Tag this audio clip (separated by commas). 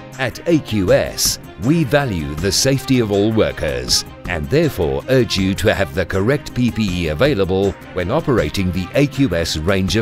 Speech, Music